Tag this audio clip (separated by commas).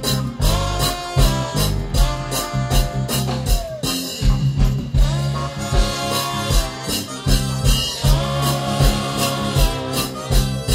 Music, Ska, Blues